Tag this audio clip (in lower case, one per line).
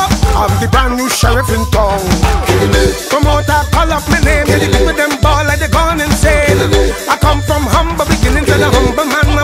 music